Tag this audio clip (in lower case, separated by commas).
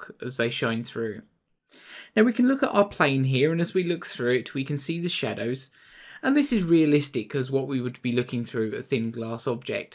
speech